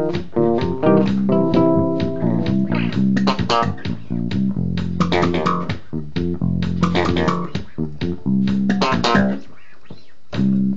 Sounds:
musical instrument, playing bass guitar, guitar, music, bass guitar, plucked string instrument

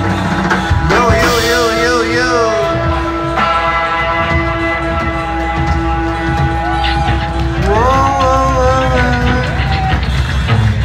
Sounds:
speech, music

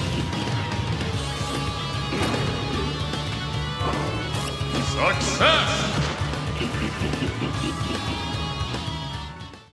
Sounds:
speech, music

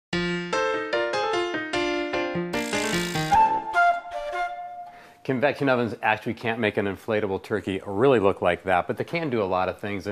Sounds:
speech, inside a small room, music

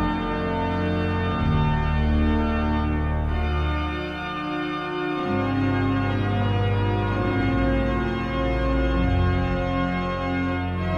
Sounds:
music, musical instrument

